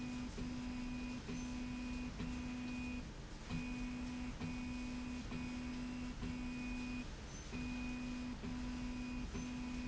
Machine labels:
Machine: slide rail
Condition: normal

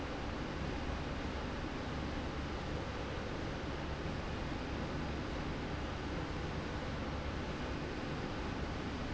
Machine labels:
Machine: slide rail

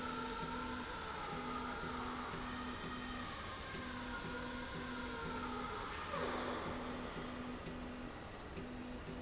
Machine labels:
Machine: slide rail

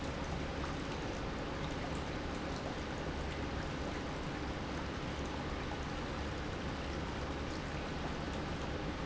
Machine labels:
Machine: pump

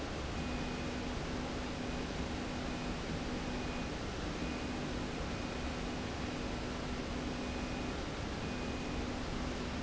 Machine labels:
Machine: slide rail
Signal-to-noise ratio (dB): -6 dB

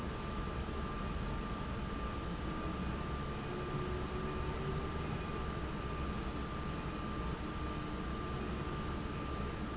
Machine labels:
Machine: fan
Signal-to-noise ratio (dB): -6 dB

